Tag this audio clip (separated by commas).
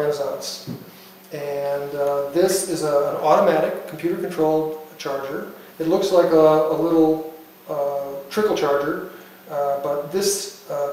Speech